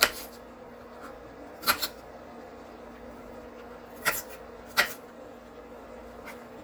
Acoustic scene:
kitchen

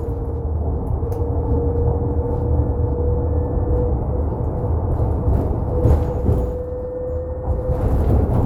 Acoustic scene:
bus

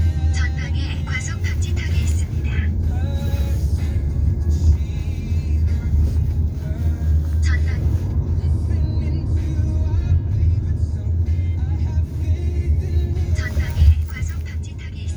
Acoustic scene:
car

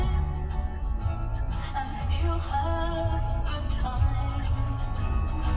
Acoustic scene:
car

